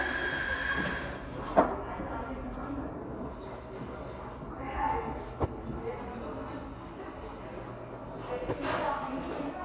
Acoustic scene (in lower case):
crowded indoor space